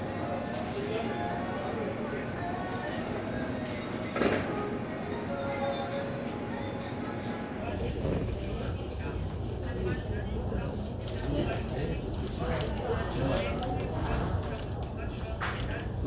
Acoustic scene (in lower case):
crowded indoor space